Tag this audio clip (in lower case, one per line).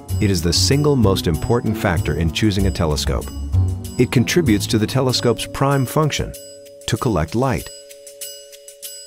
glockenspiel
music
speech